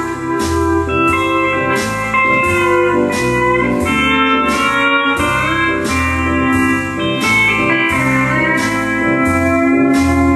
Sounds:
Strum, Musical instrument, Music

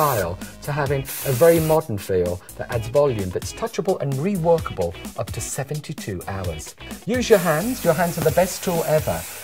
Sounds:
Speech, Music, Spray

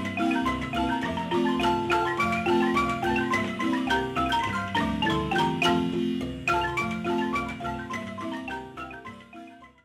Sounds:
xylophone, Music

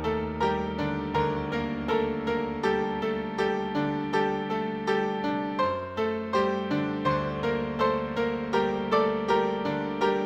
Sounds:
Soul music, Happy music, Theme music, Music, Independent music

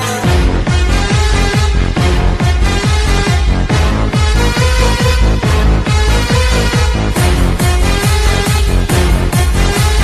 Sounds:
Soundtrack music, Music

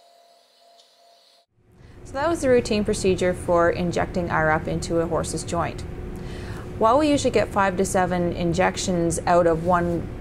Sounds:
Speech

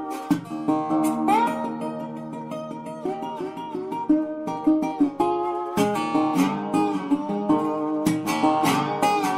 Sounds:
Musical instrument, Plucked string instrument, Music, Acoustic guitar, Guitar, Strum

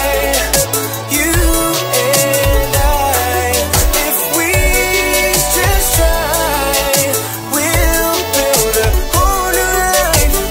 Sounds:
Rhythm and blues, Music

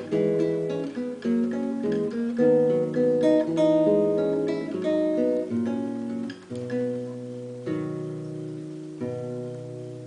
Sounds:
Plucked string instrument, Musical instrument, Strum, Music, Guitar

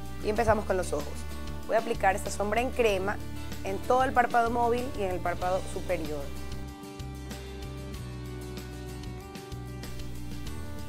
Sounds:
Speech, Music

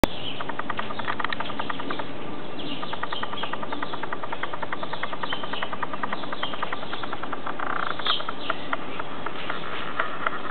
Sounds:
Animal, Bird, rooster

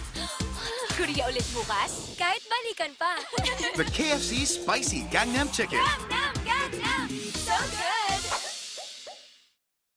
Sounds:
Music, Speech

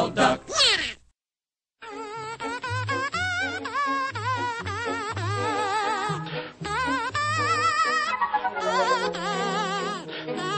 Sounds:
Quack, Animal, Music, Speech

